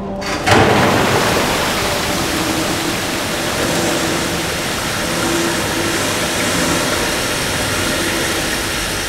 A loud gush of water flowing